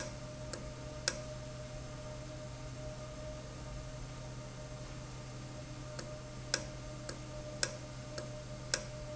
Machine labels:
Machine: valve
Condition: normal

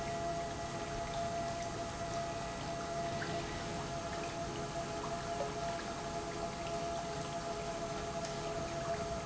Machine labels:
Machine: pump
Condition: normal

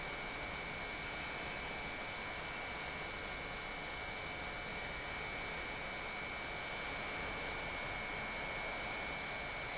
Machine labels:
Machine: pump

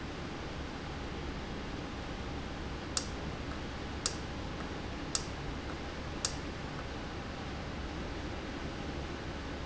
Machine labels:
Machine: valve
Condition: normal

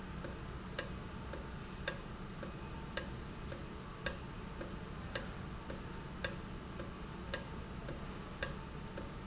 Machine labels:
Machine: valve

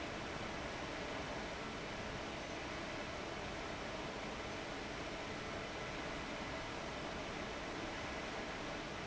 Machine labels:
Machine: fan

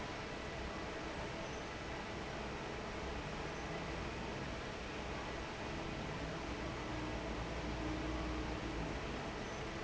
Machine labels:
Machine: fan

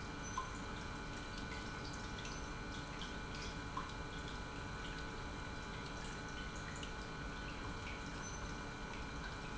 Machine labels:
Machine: pump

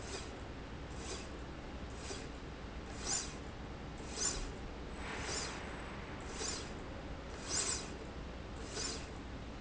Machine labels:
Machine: slide rail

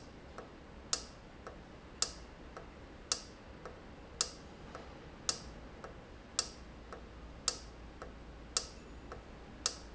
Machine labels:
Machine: valve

